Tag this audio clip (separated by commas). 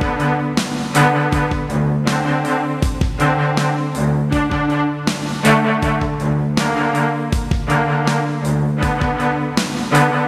Music